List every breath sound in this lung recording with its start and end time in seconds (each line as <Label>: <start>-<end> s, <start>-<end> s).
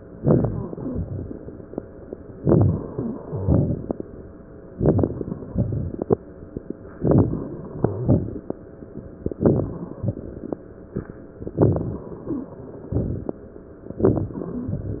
Inhalation: 0.14-0.77 s, 2.37-2.97 s, 4.71-5.51 s, 7.01-7.75 s, 9.34-10.03 s, 11.53-12.23 s, 12.86-13.54 s
Exhalation: 0.77-1.68 s, 2.99-4.34 s, 5.50-6.52 s, 7.77-8.89 s
Wheeze: 0.76-1.05 s, 2.88-3.20 s, 7.77-8.09 s, 12.27-12.53 s
Crackles: 4.72-5.46 s, 5.50-6.52 s, 7.01-7.75 s, 9.34-10.03 s, 11.53-12.23 s, 12.86-13.54 s